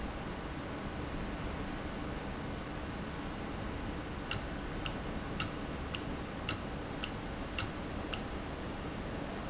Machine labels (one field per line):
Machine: valve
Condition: normal